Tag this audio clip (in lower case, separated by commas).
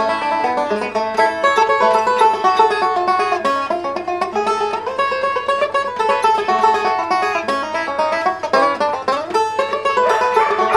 music, musical instrument, banjo